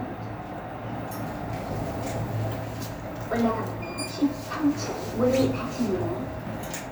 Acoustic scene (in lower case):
elevator